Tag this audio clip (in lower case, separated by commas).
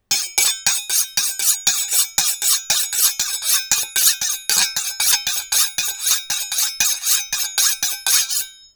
domestic sounds, silverware